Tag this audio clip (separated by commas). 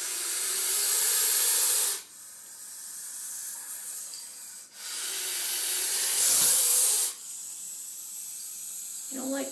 snake hissing